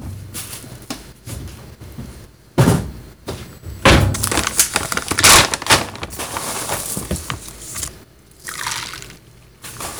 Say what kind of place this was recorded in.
kitchen